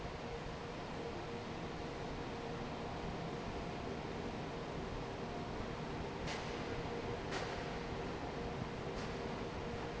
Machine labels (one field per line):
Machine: fan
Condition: normal